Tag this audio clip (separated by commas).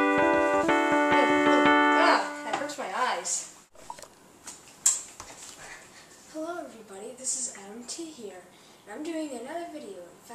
Speech, Music